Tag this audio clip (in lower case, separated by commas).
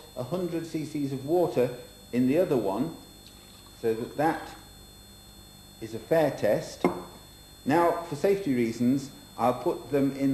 speech, liquid